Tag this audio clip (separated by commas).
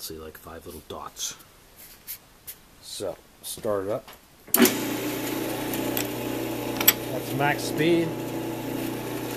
Speech